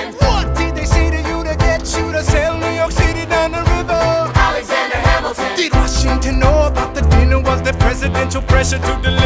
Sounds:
Music, Jazz

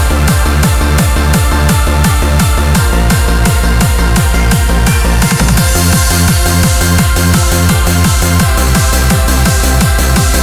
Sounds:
Music, Roll

